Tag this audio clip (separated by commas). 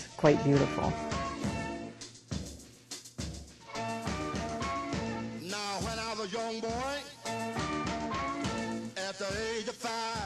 Swing music, Speech, Music